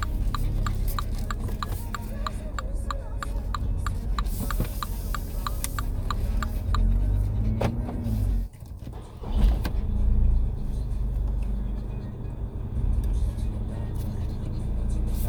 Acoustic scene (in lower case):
car